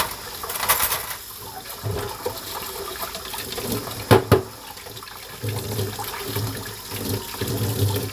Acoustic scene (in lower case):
kitchen